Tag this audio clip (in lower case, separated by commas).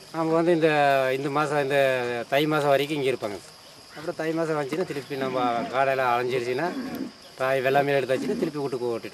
speech